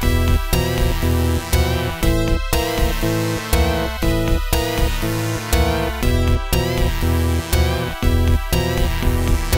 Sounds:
music

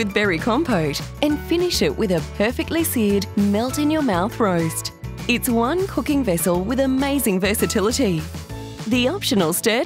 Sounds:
speech, music

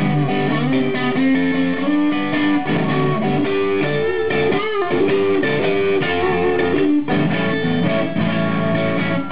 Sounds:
music

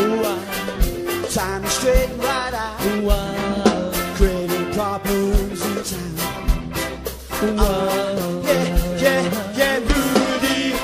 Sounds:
musical instrument, ska, singing, music

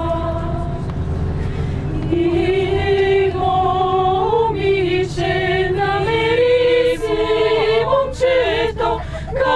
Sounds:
choir

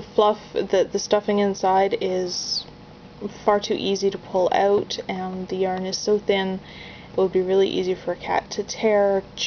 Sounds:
speech

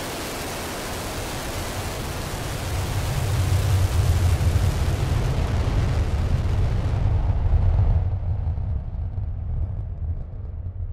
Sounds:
missile launch

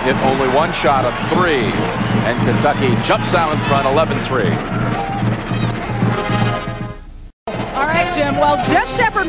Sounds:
speech, music

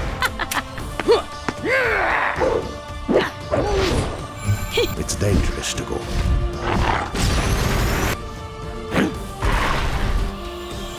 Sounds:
music, speech

